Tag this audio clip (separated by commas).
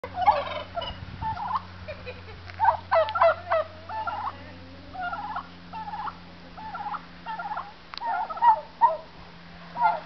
Bird, Speech